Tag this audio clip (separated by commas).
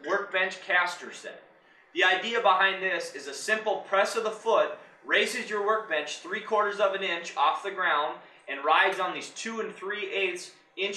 Speech